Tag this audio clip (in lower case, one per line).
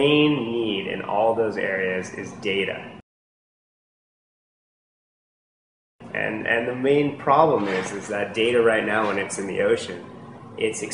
speech